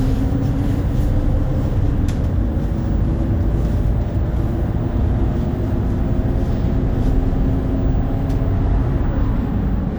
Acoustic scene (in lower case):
bus